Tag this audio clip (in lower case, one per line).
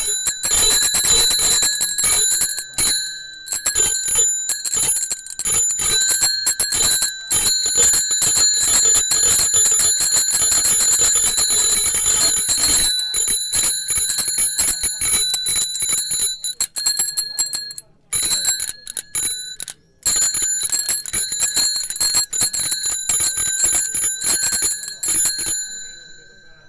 bell
bicycle bell
bicycle
alarm
vehicle